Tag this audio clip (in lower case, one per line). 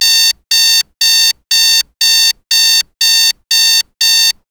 alarm